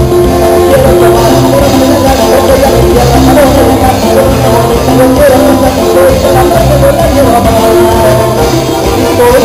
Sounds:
Music

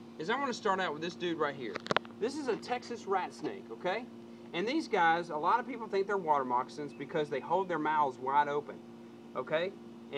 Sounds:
Speech

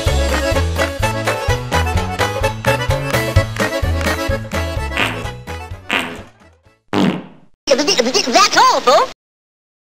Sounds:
Speech, Music

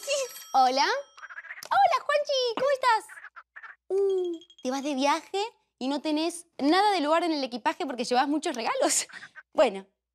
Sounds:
Speech

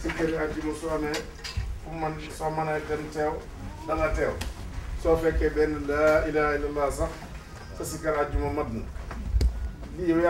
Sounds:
man speaking, Speech

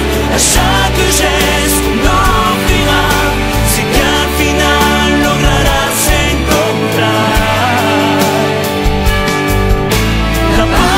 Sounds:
Pop music, Music

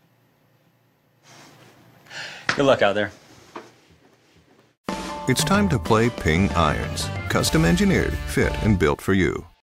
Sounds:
Speech, Music

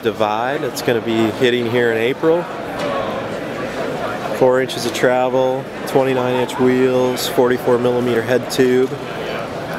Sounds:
Speech

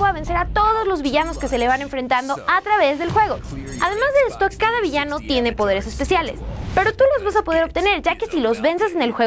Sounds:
Speech

